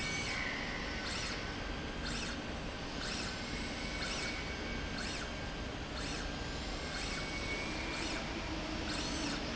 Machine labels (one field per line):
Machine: slide rail